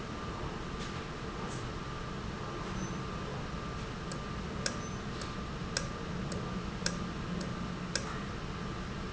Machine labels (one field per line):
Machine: valve